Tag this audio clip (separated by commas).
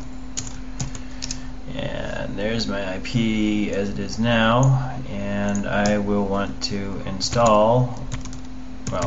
Speech, Computer keyboard